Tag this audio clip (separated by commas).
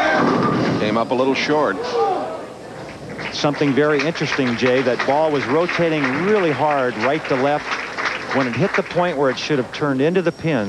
Speech